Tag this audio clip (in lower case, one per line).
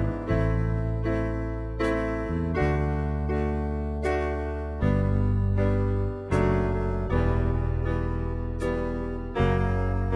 music